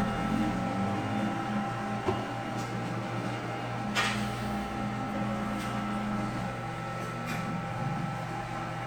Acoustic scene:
cafe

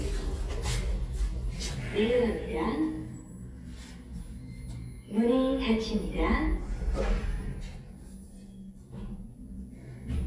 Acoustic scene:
elevator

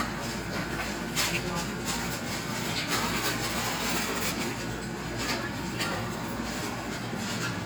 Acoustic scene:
cafe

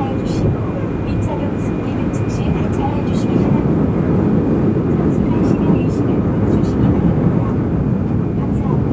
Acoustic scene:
subway train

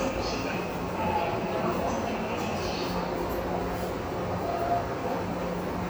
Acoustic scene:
subway station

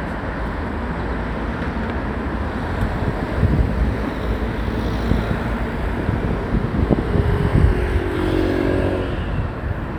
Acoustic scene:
residential area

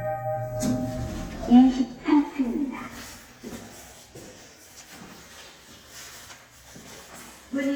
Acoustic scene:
elevator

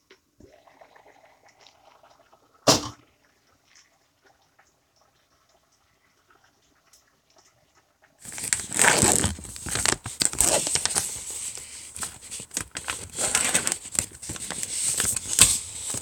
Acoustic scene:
kitchen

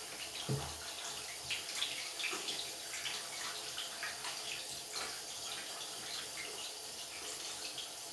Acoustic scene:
restroom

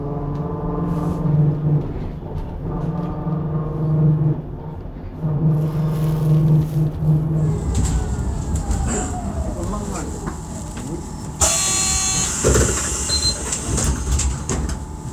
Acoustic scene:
bus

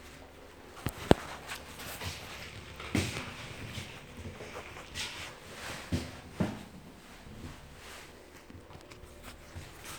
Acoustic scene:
elevator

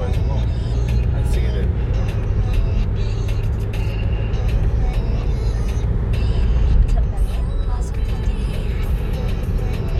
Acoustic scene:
car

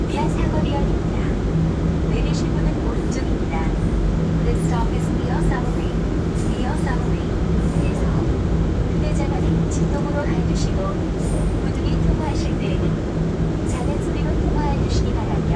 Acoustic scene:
subway train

